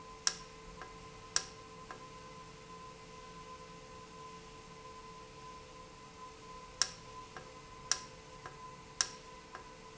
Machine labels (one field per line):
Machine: valve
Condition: normal